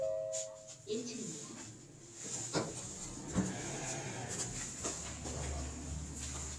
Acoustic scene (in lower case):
elevator